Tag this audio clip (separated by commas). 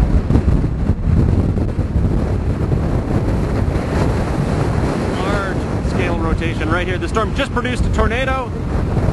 tornado roaring